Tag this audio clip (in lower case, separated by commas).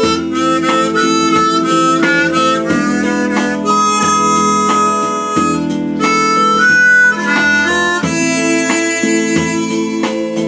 harmonica, music